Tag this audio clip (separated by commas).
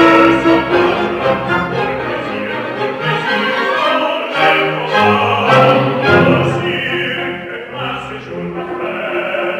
Music